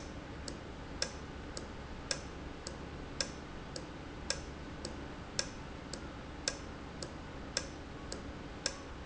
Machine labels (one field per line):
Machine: valve